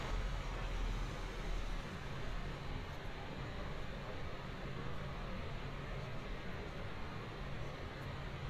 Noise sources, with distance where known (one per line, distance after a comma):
person or small group talking